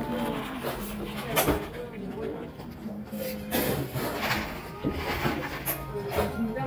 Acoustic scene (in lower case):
cafe